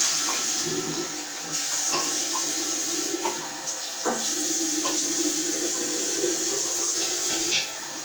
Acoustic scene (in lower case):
restroom